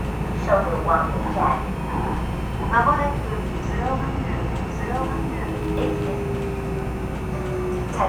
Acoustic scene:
subway train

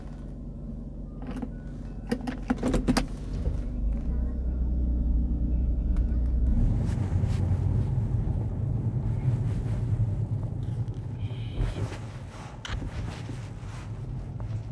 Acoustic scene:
car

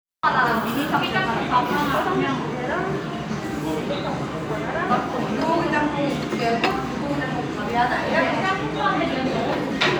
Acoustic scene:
restaurant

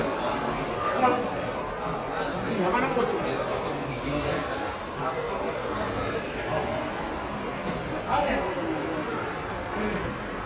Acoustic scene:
subway station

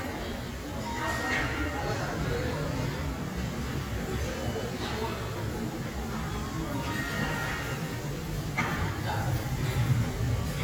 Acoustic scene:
restaurant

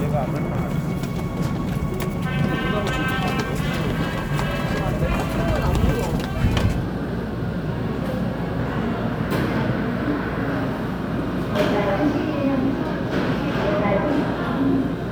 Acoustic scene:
subway station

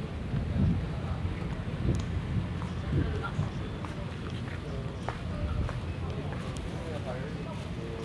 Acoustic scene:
residential area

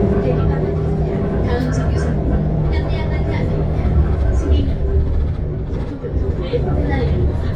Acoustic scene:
bus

